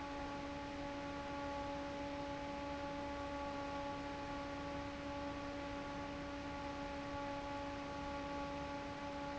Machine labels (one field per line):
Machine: fan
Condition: normal